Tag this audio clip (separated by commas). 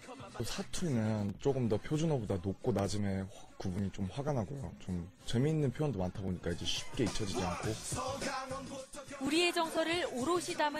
Music, Speech